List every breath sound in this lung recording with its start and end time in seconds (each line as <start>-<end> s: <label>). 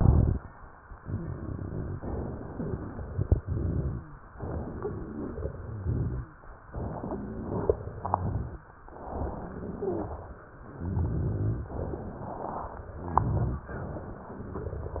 0.00-0.38 s: inhalation
0.00-0.38 s: crackles
0.91-3.17 s: crackles
3.36-4.08 s: inhalation
3.36-4.08 s: crackles
4.33-5.79 s: crackles
5.80-6.30 s: inhalation
5.80-6.30 s: crackles
6.64-8.18 s: crackles
8.20-8.69 s: inhalation
8.20-8.69 s: crackles
8.92-10.13 s: crackles
9.73-10.13 s: wheeze
10.78-11.67 s: inhalation
10.83-11.69 s: crackles
11.72-12.98 s: crackles
13.15-13.72 s: inhalation
13.15-13.72 s: crackles
13.76-15.00 s: crackles